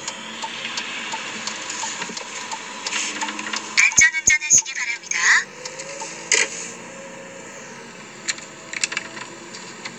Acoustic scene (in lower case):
car